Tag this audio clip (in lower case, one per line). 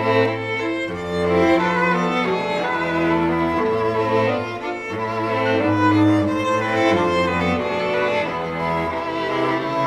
music